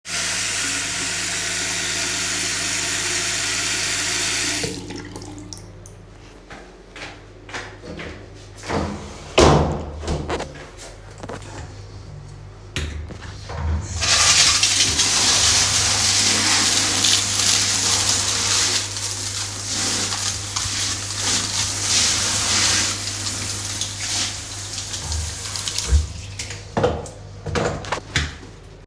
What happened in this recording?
I gone to brush, washed my mouth with water by opening the tap and then gone inside the bathing cabinet after closing the bathing cabinet door, finally started to bath.